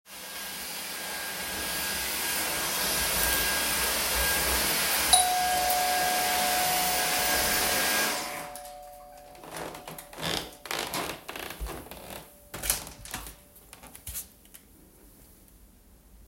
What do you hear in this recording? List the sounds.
vacuum cleaner, bell ringing, footsteps, door